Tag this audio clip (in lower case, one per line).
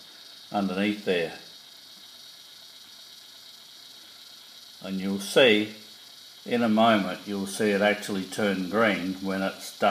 speech